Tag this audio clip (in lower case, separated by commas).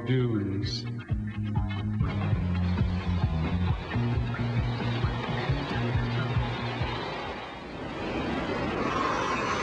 speech, music